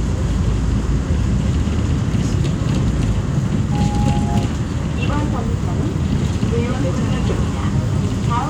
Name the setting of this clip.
bus